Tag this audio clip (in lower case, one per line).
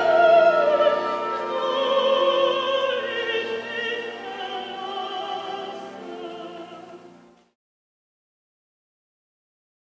music
classical music
opera